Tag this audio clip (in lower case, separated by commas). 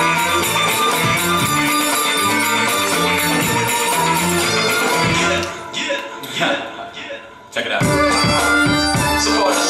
speech, music